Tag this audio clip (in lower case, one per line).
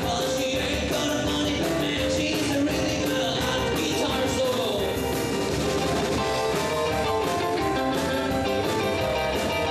music